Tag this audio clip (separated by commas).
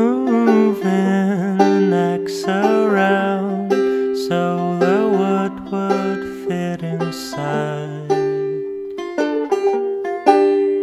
Banjo